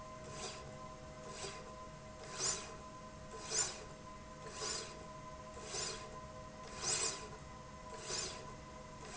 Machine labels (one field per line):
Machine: slide rail